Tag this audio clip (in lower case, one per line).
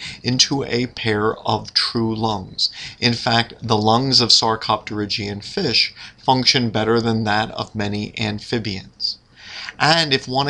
speech